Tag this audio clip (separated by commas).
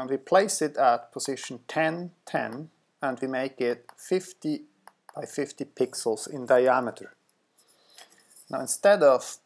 Speech